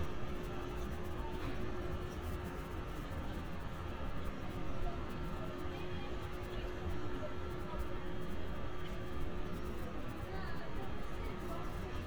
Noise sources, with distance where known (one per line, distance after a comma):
large-sounding engine
person or small group talking